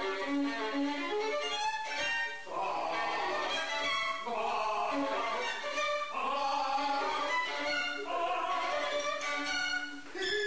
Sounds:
Traditional music, Musical instrument, Violin, Music, Bowed string instrument

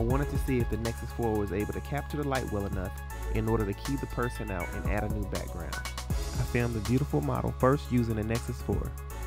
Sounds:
Music, Speech

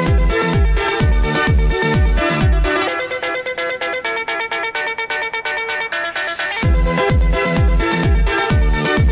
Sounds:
Music, Dubstep

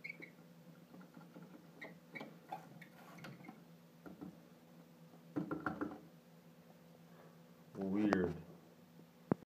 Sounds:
Speech

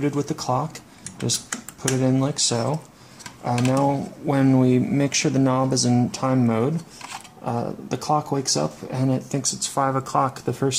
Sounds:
Speech

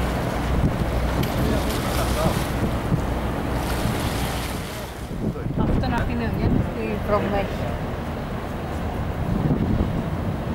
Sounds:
Water vehicle, Speech

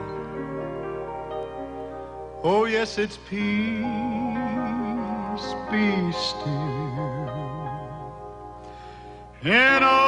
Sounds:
Male singing, Music

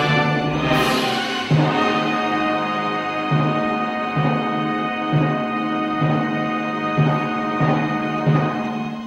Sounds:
Orchestra, Music

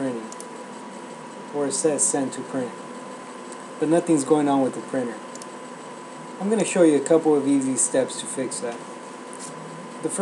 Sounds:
Speech

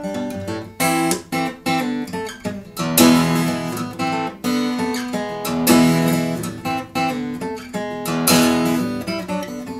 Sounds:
Plucked string instrument, Guitar, Musical instrument, Music, Electric guitar, Strum

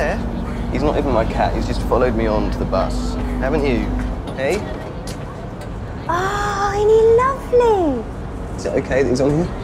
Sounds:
Speech, Vehicle

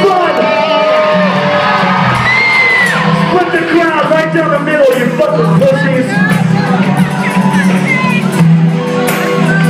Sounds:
Music, Speech, Shout

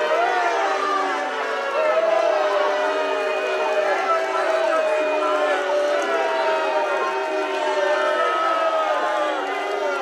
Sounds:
people booing

